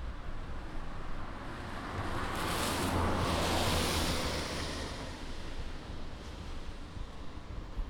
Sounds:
engine, motor vehicle (road), car passing by, car, vehicle

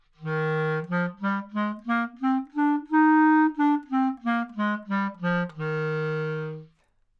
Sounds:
music, woodwind instrument, musical instrument

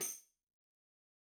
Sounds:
music, musical instrument, percussion, tambourine

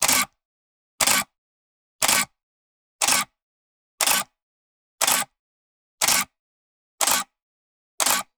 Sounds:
camera, mechanisms

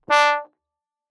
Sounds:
brass instrument, music, musical instrument

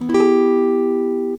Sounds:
plucked string instrument, music, musical instrument, acoustic guitar, strum, guitar

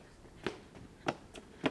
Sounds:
run

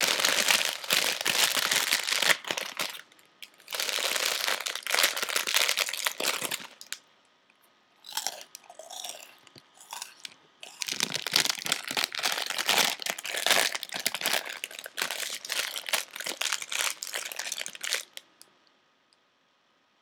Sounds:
chewing

